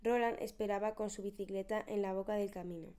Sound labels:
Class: speech